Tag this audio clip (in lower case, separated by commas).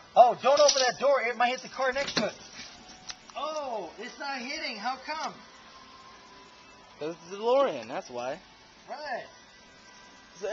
speech